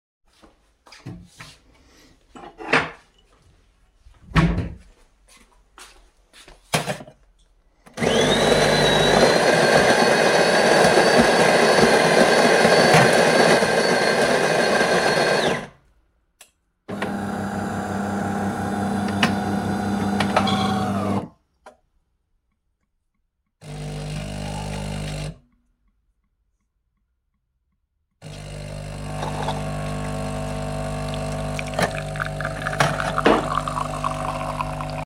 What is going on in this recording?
I walked over to the kitchendrawer and got myself a cup. Then I walked over to the coffeemachine to get a freshly grinded coffee